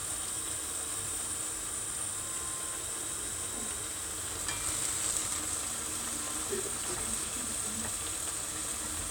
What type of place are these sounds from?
kitchen